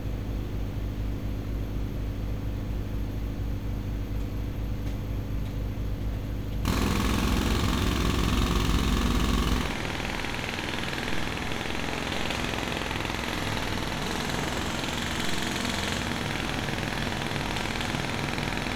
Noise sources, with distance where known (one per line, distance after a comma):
jackhammer, near